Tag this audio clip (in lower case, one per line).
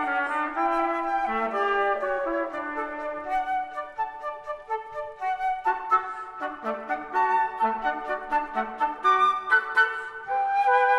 playing cornet